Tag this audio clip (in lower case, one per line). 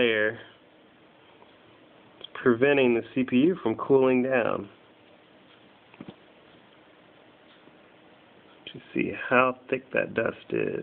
speech